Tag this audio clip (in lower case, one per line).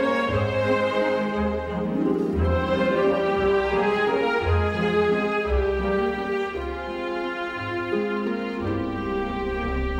music
blues